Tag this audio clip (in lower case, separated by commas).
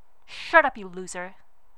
speech, female speech, human voice